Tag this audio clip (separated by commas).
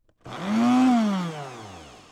home sounds